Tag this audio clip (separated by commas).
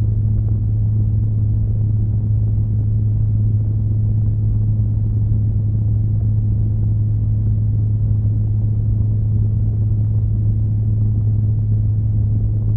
Mechanisms, Mechanical fan